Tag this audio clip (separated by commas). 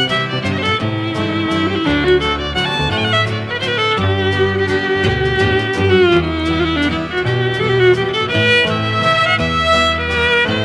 Musical instrument, Music, fiddle